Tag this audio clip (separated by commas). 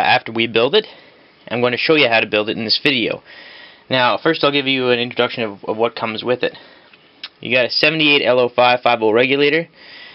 inside a small room, Speech